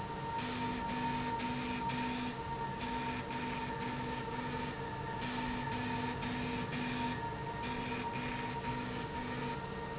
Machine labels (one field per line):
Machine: slide rail